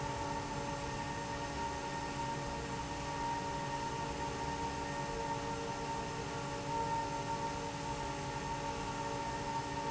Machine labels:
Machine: fan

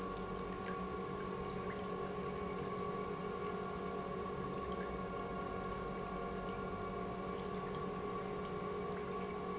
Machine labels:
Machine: pump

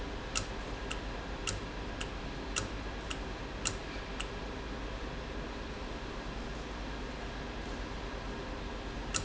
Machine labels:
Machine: valve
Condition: normal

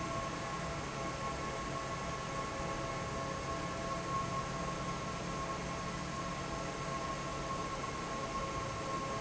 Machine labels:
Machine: fan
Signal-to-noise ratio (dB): -6 dB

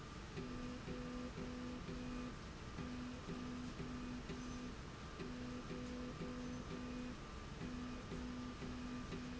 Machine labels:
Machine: slide rail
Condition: normal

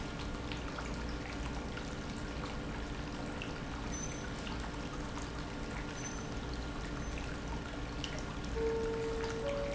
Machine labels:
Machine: pump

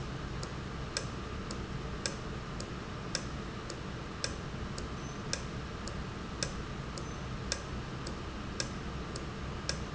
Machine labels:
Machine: valve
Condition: normal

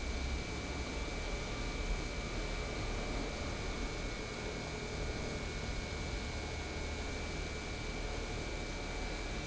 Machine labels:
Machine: pump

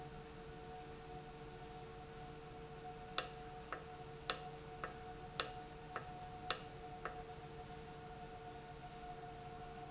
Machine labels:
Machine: valve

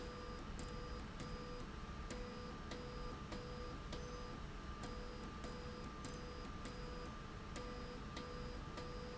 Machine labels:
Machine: slide rail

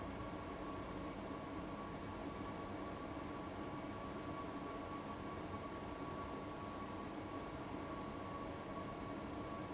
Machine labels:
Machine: fan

